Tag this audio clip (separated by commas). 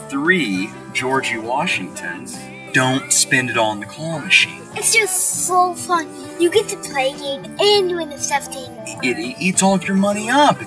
Music, Speech